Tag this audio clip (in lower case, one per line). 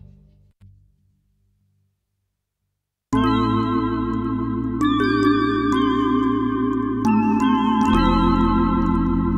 keyboard (musical)
musical instrument
piano
music